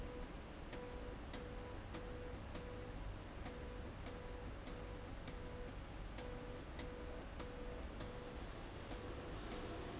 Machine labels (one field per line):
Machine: slide rail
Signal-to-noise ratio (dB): 6 dB